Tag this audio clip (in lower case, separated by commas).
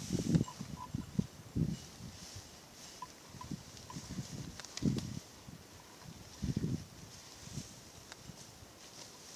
cattle